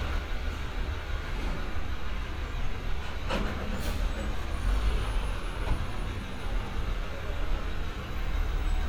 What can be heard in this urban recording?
large-sounding engine